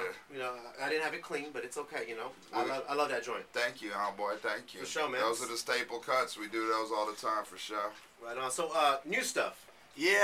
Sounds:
Speech

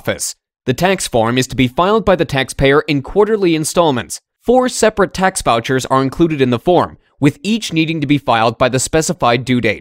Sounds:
Speech

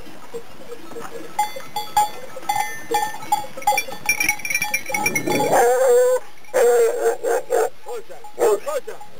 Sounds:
Animal, Speech, Bow-wow

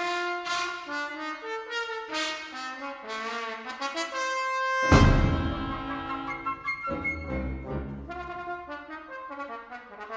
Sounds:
Trombone, Brass instrument, Clarinet, Trumpet

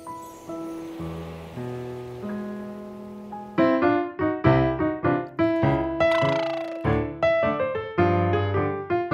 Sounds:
Music

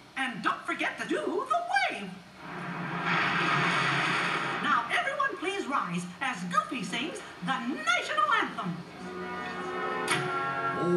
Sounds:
Music, Speech

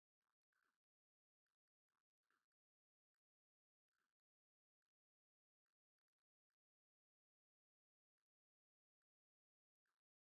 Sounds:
Silence

